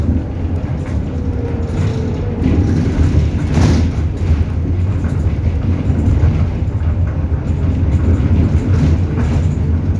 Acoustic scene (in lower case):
bus